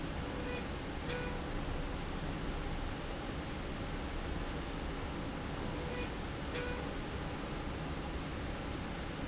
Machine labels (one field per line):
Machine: slide rail